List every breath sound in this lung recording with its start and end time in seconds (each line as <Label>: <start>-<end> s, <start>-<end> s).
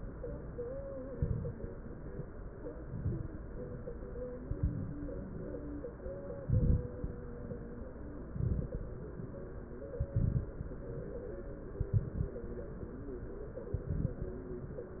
Inhalation: 1.08-1.65 s, 2.77-3.34 s, 4.43-5.00 s, 6.42-6.99 s, 8.30-8.87 s, 9.99-10.56 s, 11.82-12.39 s, 13.78-14.35 s
Crackles: 1.08-1.65 s, 2.77-3.34 s, 4.43-5.00 s, 6.42-6.99 s, 8.30-8.87 s, 9.99-10.56 s, 11.82-12.39 s, 13.78-14.35 s